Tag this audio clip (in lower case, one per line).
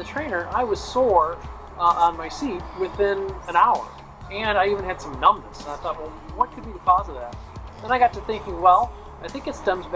music
speech